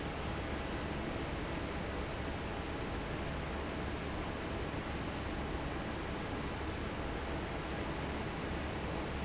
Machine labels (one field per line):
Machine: fan